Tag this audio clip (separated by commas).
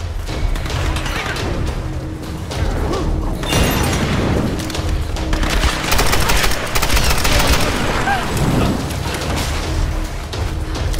Music, Speech, outside, rural or natural